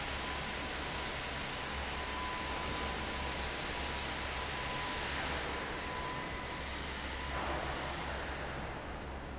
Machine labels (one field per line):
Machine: fan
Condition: normal